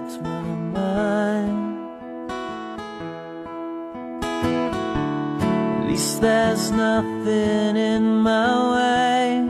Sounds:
music

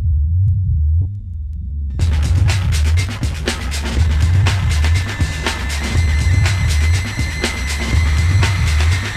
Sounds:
music
techno

